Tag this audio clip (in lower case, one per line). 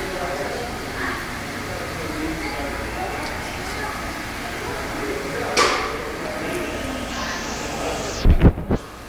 speech